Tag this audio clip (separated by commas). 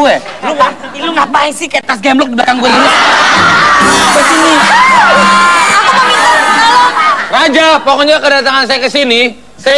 Speech, Music, inside a large room or hall